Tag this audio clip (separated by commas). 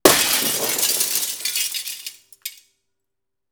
Glass, Shatter